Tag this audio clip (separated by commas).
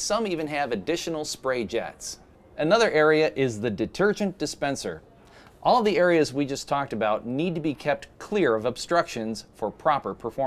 Speech